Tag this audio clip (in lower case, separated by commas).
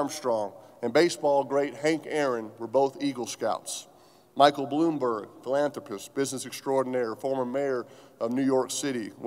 monologue, male speech, speech